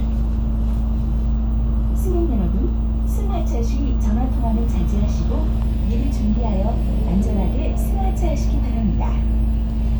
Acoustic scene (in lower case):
bus